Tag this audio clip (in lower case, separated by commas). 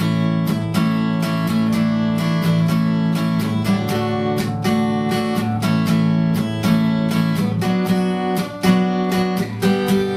plucked string instrument, music, acoustic guitar, guitar, musical instrument